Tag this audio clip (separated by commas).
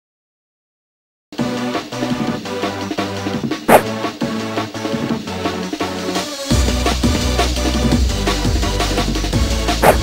Music